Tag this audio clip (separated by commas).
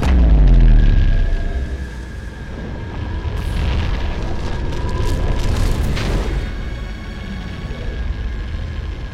firing cannon